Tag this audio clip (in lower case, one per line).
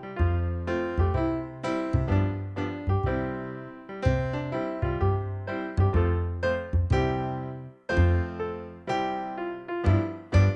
music